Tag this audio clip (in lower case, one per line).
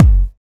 musical instrument
drum
bass drum
music
percussion